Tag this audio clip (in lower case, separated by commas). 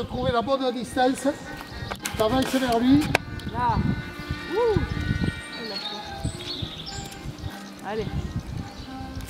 music, speech